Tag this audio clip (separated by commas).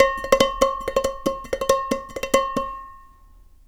dishes, pots and pans, home sounds